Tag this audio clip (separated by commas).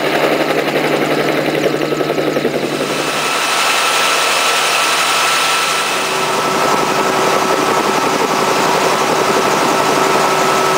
Aircraft, Helicopter, Vehicle, Engine